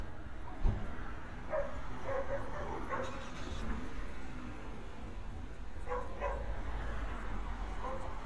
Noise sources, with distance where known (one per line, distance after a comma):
dog barking or whining, far